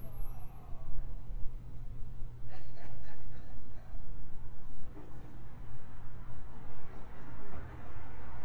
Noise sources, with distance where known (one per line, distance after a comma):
person or small group talking, near